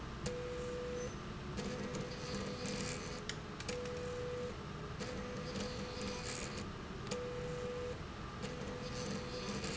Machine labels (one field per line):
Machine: slide rail